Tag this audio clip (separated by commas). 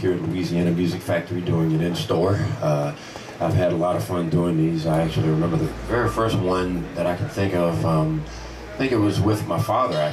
Speech